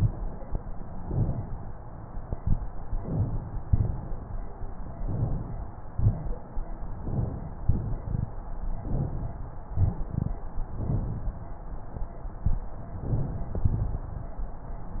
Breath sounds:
Inhalation: 0.87-1.54 s, 2.96-3.63 s, 4.98-5.64 s, 6.95-7.62 s, 8.84-9.50 s, 12.92-13.58 s
Exhalation: 3.65-4.31 s, 5.89-6.55 s, 7.68-8.34 s, 9.73-10.39 s, 13.61-14.27 s

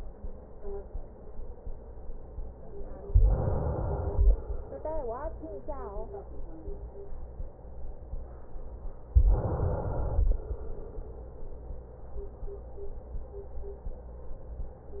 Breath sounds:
Inhalation: 3.07-4.44 s, 9.06-10.44 s
Exhalation: 10.28-12.37 s

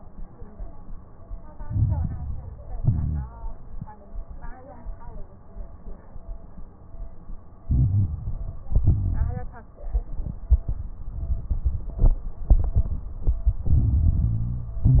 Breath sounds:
Inhalation: 1.59-2.75 s, 7.64-8.66 s, 13.66-14.84 s
Exhalation: 2.79-3.53 s, 8.68-9.50 s, 14.84-15.00 s
Crackles: 1.59-2.75 s, 2.79-3.53 s, 7.64-8.66 s, 8.68-9.50 s, 13.69-14.82 s, 14.84-15.00 s

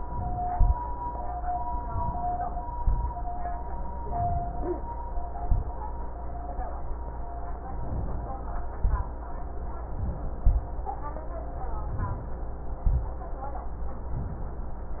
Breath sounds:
Inhalation: 1.84-2.70 s, 3.89-4.55 s, 7.80-8.79 s, 9.79-10.40 s, 11.86-12.77 s
Exhalation: 0.46-0.76 s, 2.77-3.11 s, 5.41-5.79 s, 8.82-9.17 s, 10.42-10.76 s, 12.85-13.17 s

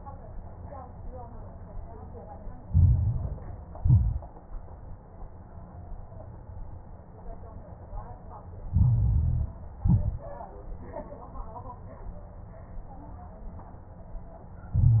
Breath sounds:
Inhalation: 2.66-3.74 s, 8.68-9.59 s, 14.73-15.00 s
Exhalation: 3.76-4.31 s, 9.82-10.30 s
Crackles: 2.66-3.74 s, 3.76-4.31 s, 8.68-9.59 s, 9.82-10.30 s, 14.73-15.00 s

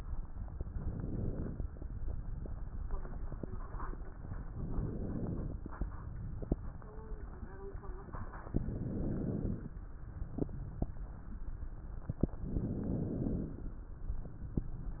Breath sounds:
Inhalation: 0.34-1.58 s, 4.38-5.63 s, 8.40-9.79 s, 12.41-13.79 s

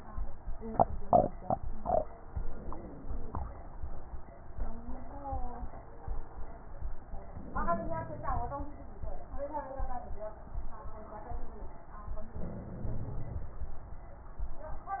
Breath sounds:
Inhalation: 2.22-3.49 s, 7.37-8.64 s, 12.41-13.68 s
Stridor: 2.20-3.48 s, 7.35-8.62 s

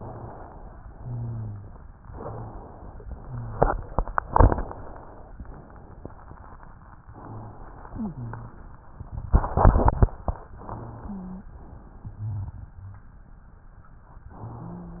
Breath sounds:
Wheeze: 7.91-8.65 s, 10.97-11.50 s
Rhonchi: 0.99-1.73 s, 11.97-13.11 s

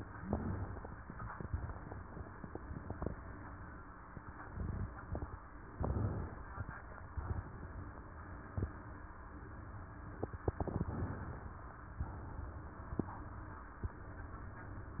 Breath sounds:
Inhalation: 5.75-7.15 s, 10.58-12.00 s
Exhalation: 7.15-8.03 s, 12.00-13.05 s

